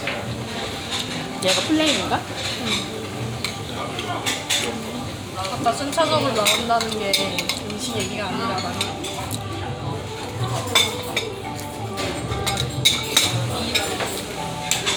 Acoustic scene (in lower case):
restaurant